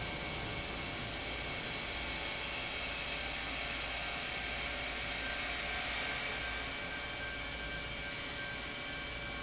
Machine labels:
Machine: pump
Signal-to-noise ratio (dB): -6 dB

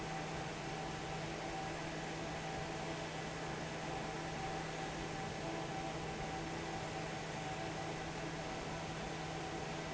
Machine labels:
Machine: fan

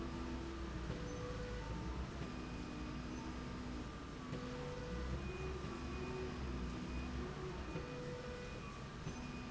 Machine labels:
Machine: slide rail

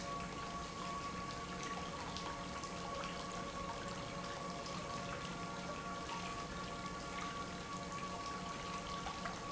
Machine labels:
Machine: pump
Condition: normal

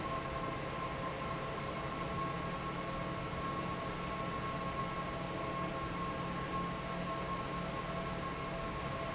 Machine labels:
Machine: fan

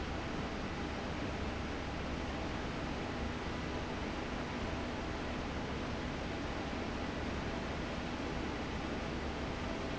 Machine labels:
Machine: fan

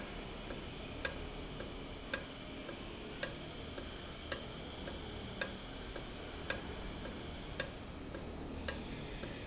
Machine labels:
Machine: valve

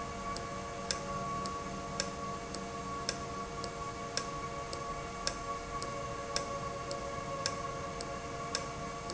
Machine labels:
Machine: valve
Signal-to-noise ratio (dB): -6 dB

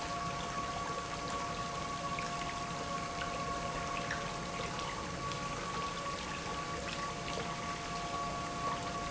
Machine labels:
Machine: pump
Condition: abnormal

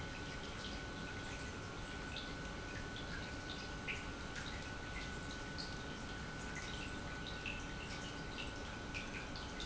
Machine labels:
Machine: pump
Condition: normal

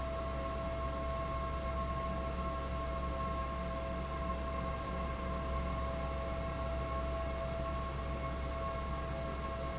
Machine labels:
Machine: fan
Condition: abnormal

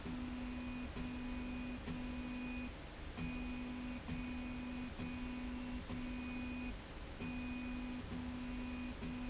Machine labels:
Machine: slide rail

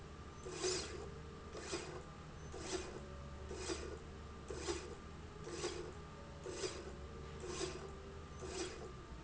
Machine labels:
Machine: slide rail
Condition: normal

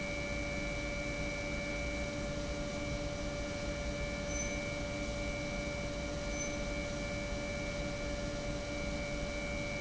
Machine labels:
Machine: pump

